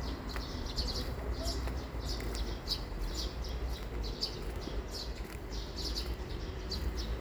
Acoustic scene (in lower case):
park